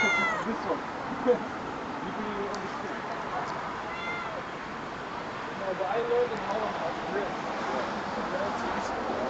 A cat meows as cars drive in the background